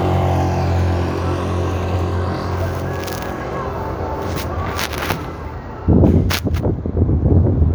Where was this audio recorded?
on a street